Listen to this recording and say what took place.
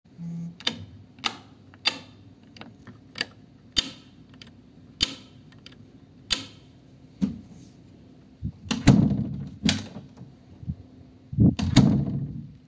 I put the phone on a table nearby in the room and then I turned on and off the light switch and then I opened and closed the door